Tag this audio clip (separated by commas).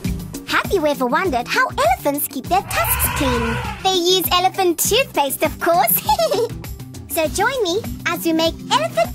Music, Speech